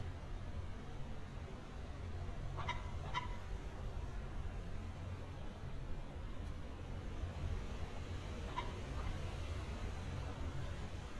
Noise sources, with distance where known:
non-machinery impact, near

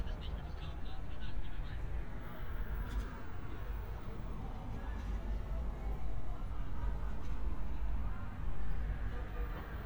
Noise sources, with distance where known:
siren, far; person or small group talking, near

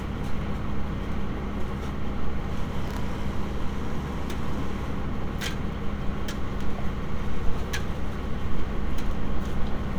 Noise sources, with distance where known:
engine of unclear size

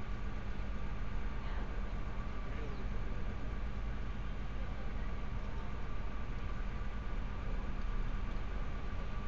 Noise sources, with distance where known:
person or small group talking

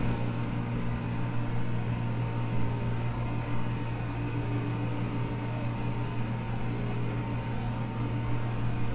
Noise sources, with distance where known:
engine of unclear size, near

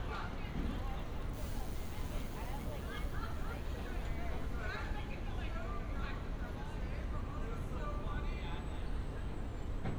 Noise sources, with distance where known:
person or small group talking, far

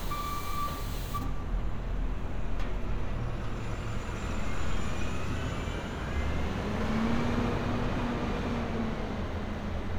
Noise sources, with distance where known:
engine of unclear size, near

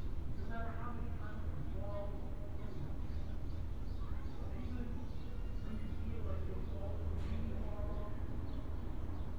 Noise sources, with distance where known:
unidentified human voice, far

